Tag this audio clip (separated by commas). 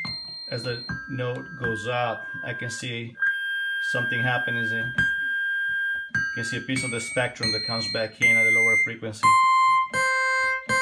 inside a small room, Speech, Synthesizer